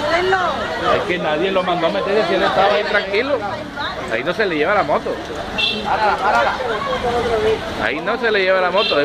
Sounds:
Speech, Chatter

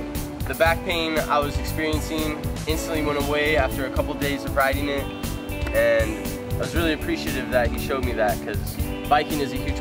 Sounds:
Speech, Music

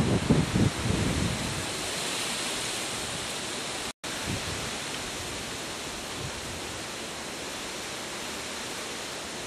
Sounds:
Wind noise (microphone), Wind

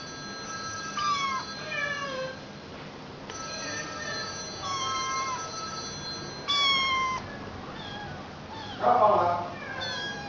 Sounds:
Speech

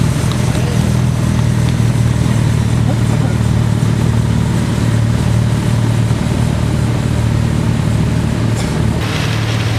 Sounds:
Speech, outside, urban or man-made

